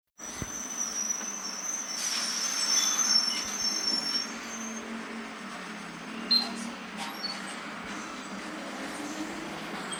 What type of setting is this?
bus